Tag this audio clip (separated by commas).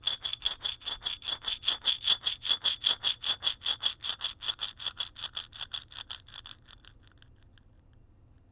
Glass